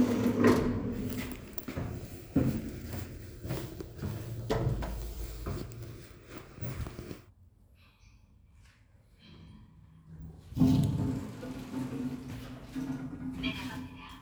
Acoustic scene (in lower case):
elevator